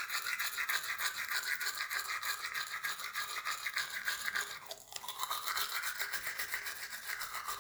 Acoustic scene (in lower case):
restroom